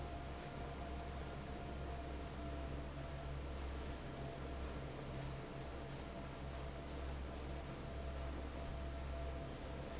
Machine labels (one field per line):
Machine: fan